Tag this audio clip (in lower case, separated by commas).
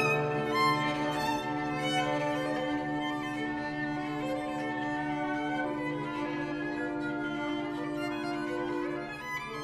violin, musical instrument, music